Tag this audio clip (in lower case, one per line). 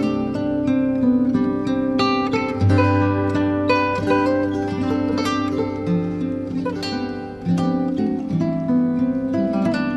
acoustic guitar
plucked string instrument
music
musical instrument
guitar